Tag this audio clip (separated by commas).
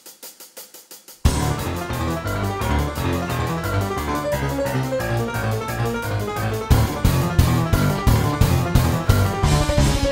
Electric piano, Musical instrument, Piano, Music, Keyboard (musical)